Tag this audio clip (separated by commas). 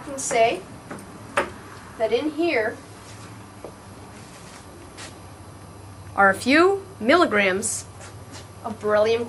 Speech